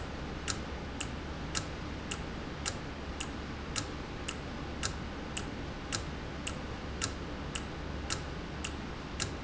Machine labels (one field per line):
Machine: valve